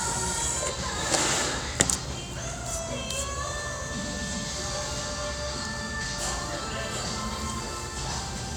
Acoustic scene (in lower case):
restaurant